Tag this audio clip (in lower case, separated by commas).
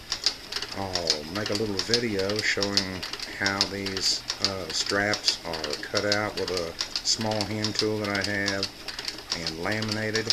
sewing machine, speech